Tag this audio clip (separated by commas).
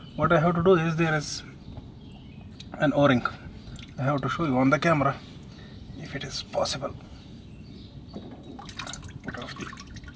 Speech, Liquid, outside, urban or man-made